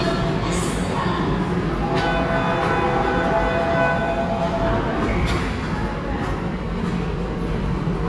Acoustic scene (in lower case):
subway station